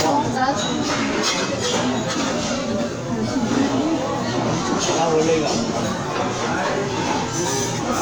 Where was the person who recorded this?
in a crowded indoor space